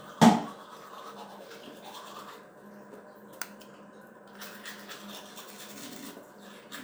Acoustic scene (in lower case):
restroom